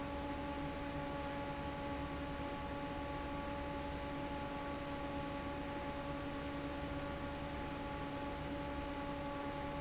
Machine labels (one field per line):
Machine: fan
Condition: normal